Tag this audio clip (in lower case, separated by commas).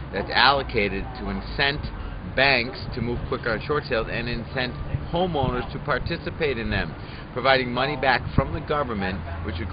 speech